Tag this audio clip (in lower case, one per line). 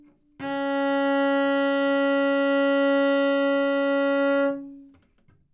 music
musical instrument
bowed string instrument